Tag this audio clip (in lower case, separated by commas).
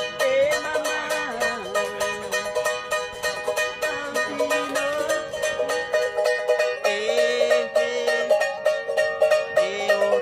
mandolin